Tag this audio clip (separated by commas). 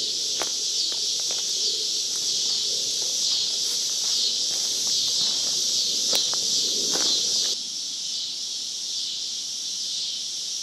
Walk, outside, rural or natural